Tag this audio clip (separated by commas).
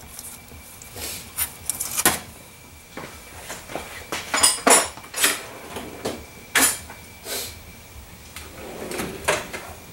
Door, Drawer open or close